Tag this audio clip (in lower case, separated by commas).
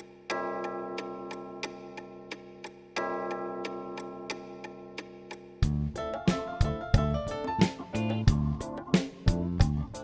tick, music, tick-tock